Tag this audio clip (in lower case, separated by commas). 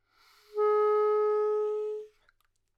musical instrument, music, wind instrument